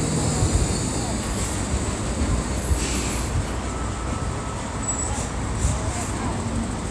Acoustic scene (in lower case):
street